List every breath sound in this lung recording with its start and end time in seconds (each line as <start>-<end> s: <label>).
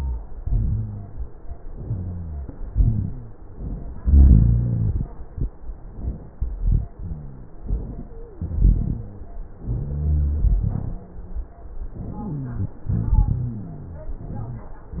0.38-1.25 s: rhonchi
0.40-1.25 s: inhalation
1.84-2.54 s: rhonchi
1.86-2.54 s: exhalation
2.68-3.57 s: rhonchi
2.73-3.59 s: inhalation
4.02-4.97 s: exhalation
4.02-4.97 s: rhonchi
5.75-6.43 s: inhalation
6.93-7.69 s: inhalation
6.93-7.69 s: rhonchi
8.10-8.44 s: wheeze
8.39-9.22 s: inhalation
8.45-9.35 s: rhonchi
9.62-10.44 s: rhonchi
9.64-10.47 s: inhalation
10.68-11.20 s: exhalation
10.68-11.59 s: rhonchi
11.95-12.79 s: inhalation
12.12-12.79 s: wheeze
12.86-13.68 s: exhalation
12.86-14.23 s: rhonchi